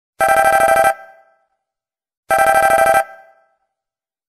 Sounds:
ringtone

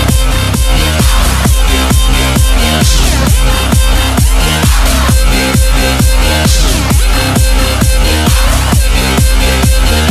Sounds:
electronic dance music

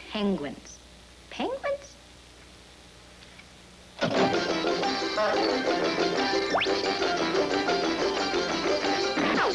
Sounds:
speech
music

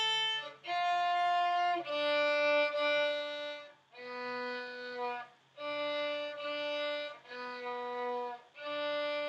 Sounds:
musical instrument
violin
music

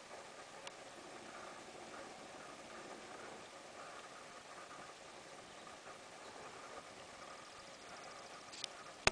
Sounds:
animal

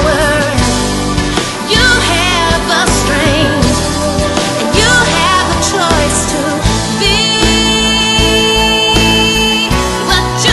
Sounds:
music

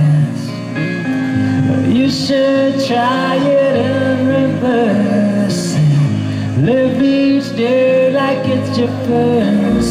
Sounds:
music
musical instrument
acoustic guitar
guitar

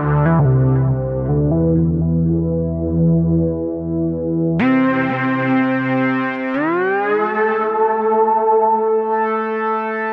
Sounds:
music
sampler

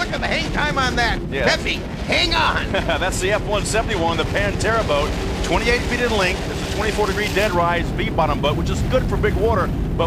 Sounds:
speech

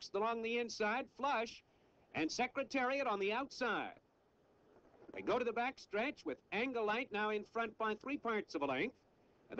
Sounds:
speech

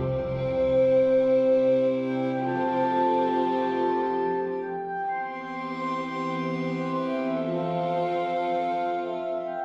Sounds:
musical instrument
music

